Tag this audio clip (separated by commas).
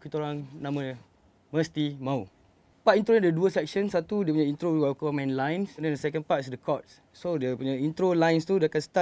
Speech